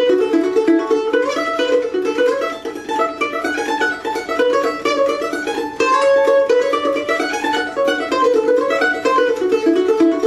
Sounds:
playing mandolin

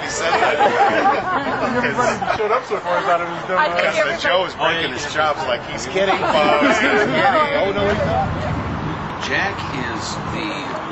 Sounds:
Speech

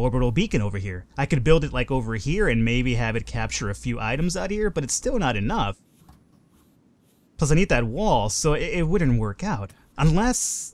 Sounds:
Speech

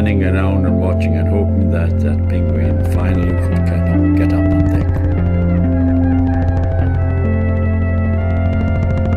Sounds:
Ambient music

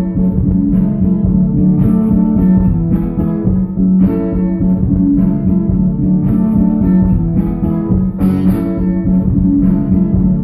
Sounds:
Music, Musical instrument, inside a large room or hall

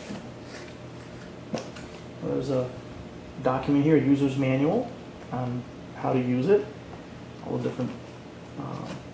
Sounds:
Speech

